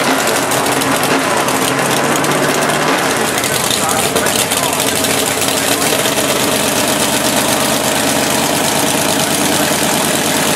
A car's engine running